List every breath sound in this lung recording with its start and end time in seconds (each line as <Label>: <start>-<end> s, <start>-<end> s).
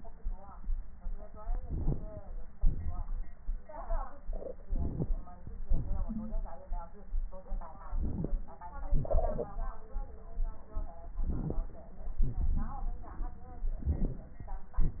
Inhalation: 1.59-2.34 s, 4.67-5.12 s, 7.87-8.48 s, 11.29-11.63 s, 13.85-14.40 s
Exhalation: 2.56-3.06 s, 5.69-6.57 s, 8.92-9.53 s, 12.24-13.38 s
Wheeze: 6.06-6.33 s